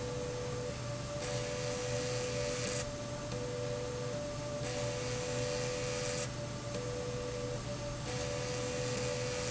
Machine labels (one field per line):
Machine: slide rail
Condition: abnormal